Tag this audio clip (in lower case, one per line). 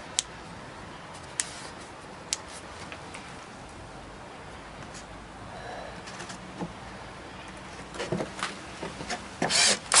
tools